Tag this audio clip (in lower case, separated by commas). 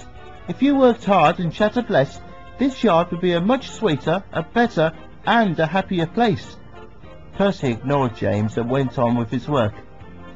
speech, music, narration